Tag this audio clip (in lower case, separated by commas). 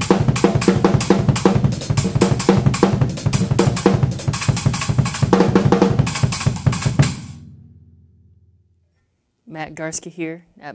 music, speech, drum roll